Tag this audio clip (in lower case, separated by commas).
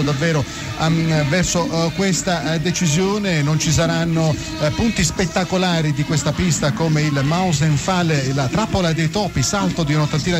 speech, radio